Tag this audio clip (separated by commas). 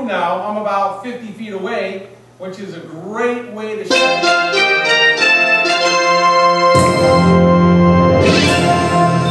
Musical instrument, Speech, Music